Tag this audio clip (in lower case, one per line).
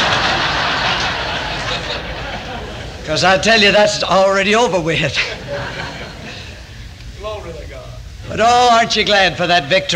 speech